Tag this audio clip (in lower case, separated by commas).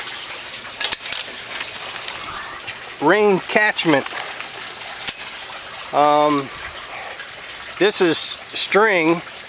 liquid, speech, outside, rural or natural